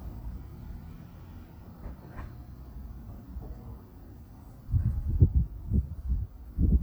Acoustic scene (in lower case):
residential area